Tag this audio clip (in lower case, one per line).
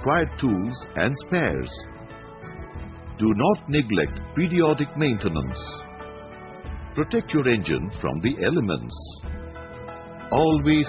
music
speech